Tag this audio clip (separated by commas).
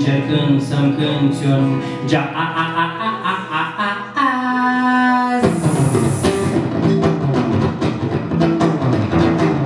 Music